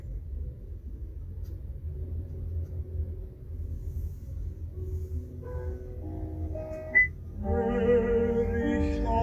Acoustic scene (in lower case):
car